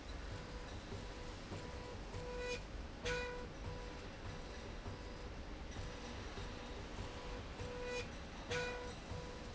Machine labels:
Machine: slide rail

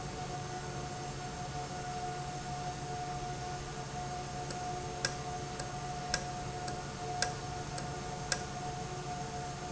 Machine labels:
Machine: valve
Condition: normal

